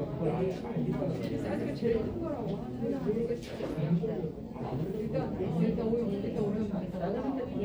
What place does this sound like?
crowded indoor space